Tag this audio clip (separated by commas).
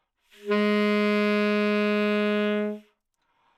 Wind instrument, Musical instrument, Music